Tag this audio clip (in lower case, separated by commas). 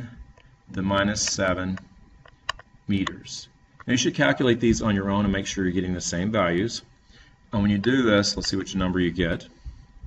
typing